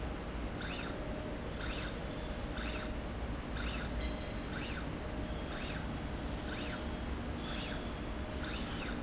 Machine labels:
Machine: slide rail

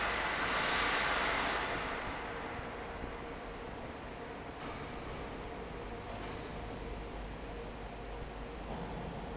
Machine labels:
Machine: fan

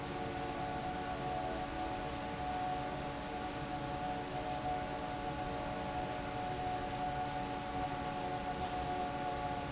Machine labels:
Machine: fan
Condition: normal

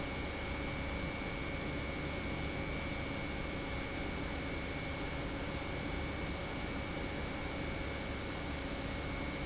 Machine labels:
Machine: pump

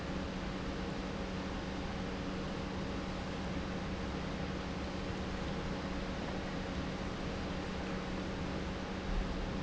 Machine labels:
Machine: pump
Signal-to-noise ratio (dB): -6 dB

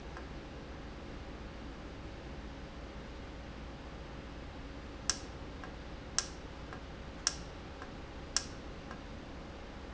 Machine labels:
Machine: valve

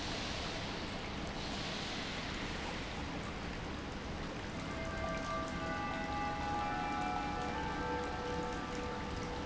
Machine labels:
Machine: pump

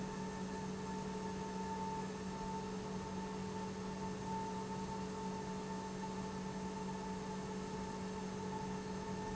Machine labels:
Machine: pump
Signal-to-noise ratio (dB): 0 dB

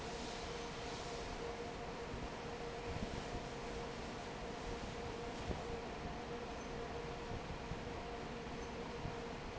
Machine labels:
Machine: fan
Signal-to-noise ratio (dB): 6 dB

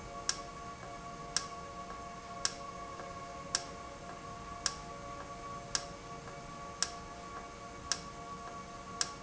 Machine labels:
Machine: valve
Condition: normal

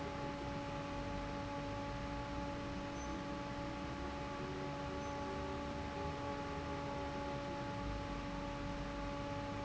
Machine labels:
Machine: fan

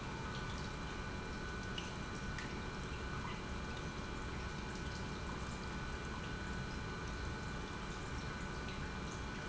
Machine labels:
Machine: pump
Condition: normal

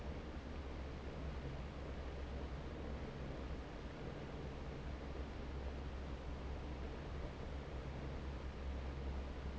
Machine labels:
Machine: fan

